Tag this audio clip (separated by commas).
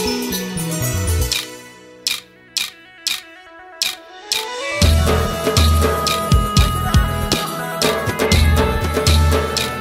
Music, Singing